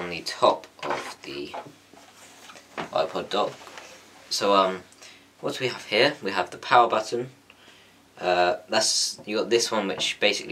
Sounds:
speech

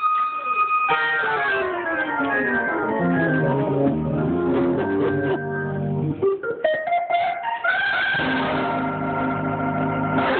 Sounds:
playing hammond organ, hammond organ, organ

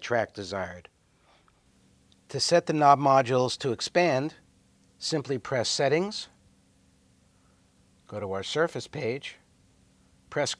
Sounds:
speech

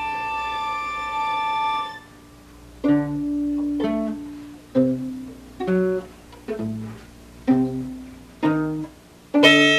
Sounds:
music, musical instrument, fiddle

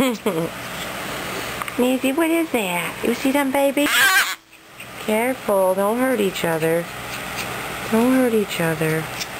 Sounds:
speech, animal

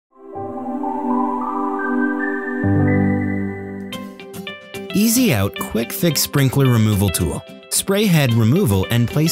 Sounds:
speech, music

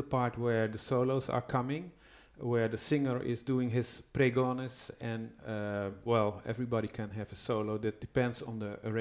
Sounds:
speech

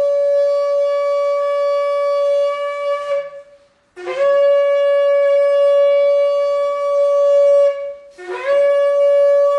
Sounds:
shofar, wind instrument

